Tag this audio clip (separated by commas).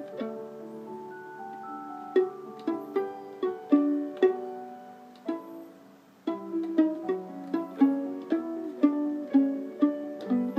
Music, Musical instrument, Pizzicato